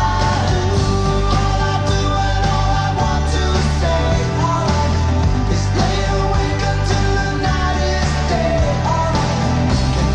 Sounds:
Music

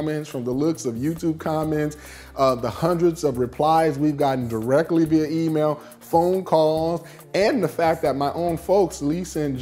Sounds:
Music, Speech

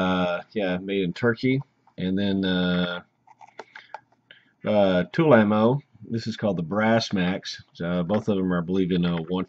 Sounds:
Speech

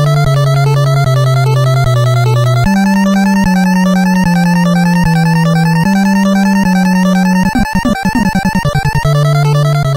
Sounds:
Soundtrack music, Music

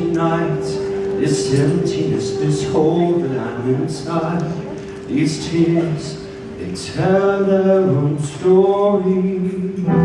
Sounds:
Male singing, Music, Speech

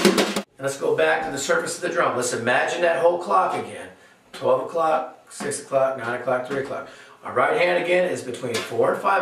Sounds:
Speech, Percussion, Music

